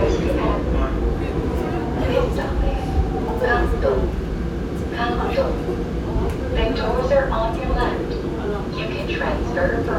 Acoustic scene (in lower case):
subway train